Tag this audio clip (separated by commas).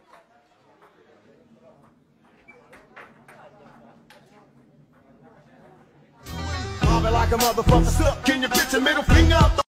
Music, Speech